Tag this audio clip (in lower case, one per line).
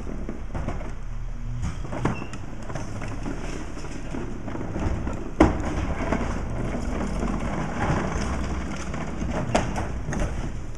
vehicle